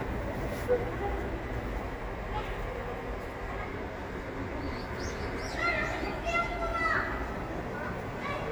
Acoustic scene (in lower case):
park